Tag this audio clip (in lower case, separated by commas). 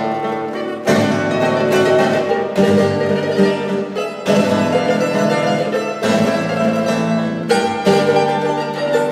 music, wedding music